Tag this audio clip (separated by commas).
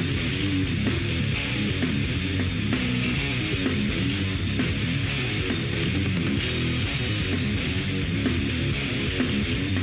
Music